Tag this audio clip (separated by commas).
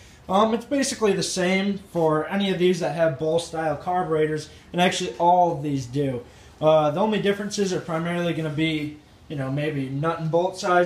Speech